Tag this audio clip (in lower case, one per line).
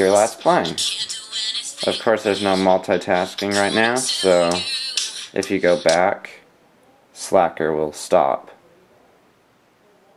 music
speech
pop music